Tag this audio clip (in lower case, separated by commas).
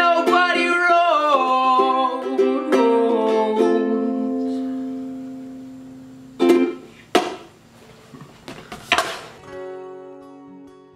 music, musical instrument, ukulele, plucked string instrument, guitar